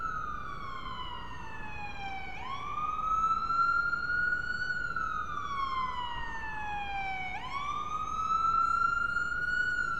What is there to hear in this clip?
siren